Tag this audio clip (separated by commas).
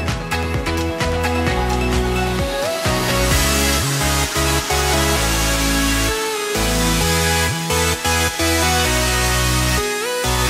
Music